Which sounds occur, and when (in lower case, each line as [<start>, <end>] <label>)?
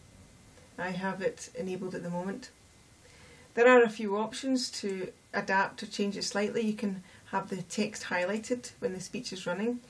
[0.00, 9.85] noise
[0.71, 2.46] female speech
[2.98, 3.43] breathing
[3.53, 5.08] female speech
[5.28, 6.95] female speech
[6.97, 7.24] breathing
[7.28, 9.81] female speech